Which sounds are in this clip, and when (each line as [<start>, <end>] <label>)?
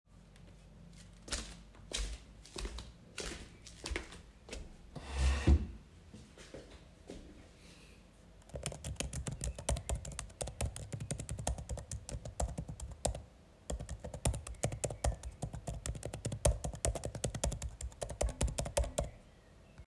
[1.27, 5.11] footsteps
[8.48, 19.16] keyboard typing